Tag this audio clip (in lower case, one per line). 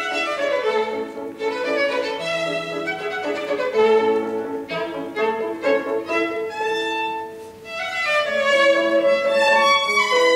musical instrument
fiddle
music